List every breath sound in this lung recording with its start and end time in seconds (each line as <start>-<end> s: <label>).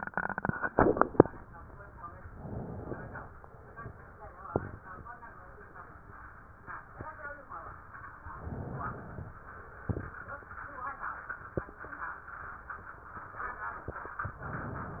2.28-3.15 s: inhalation
8.42-9.29 s: inhalation
14.35-15.00 s: inhalation